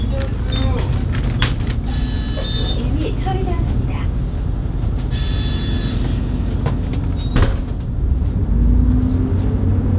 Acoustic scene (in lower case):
bus